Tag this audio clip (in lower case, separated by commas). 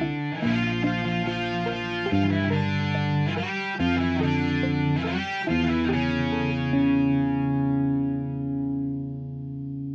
electric guitar